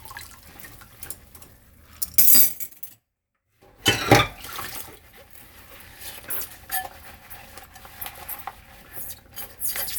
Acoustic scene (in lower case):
kitchen